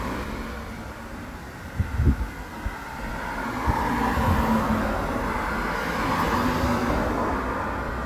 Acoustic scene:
street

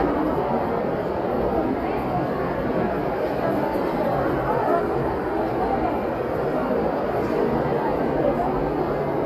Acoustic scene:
crowded indoor space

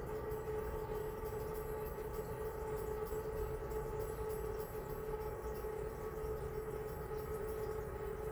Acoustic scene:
restroom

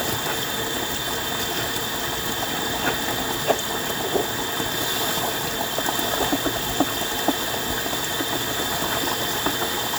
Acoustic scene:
kitchen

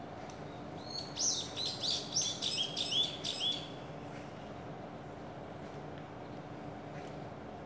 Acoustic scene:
park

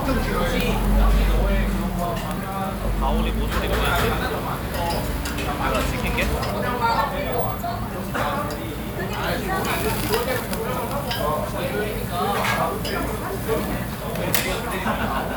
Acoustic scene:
crowded indoor space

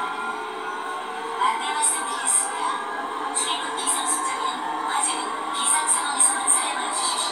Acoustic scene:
subway train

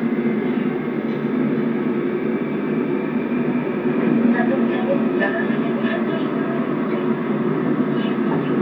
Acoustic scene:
subway train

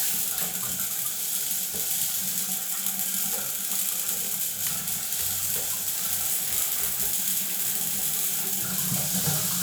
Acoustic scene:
restroom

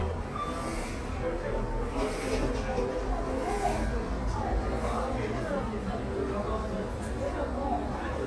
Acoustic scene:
cafe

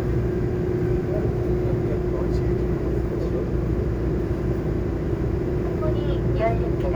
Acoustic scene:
subway train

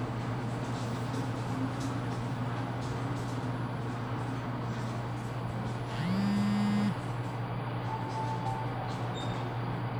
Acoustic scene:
elevator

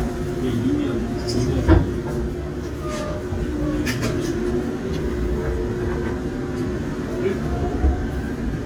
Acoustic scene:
subway train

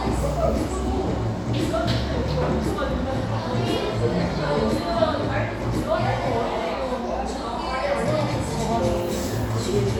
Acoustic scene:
cafe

